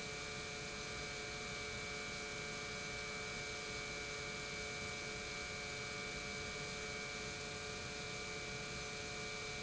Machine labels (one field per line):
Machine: pump